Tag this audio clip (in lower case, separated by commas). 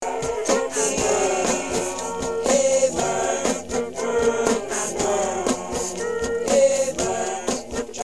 human voice